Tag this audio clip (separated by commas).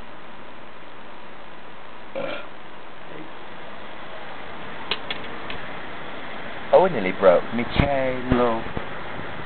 Speech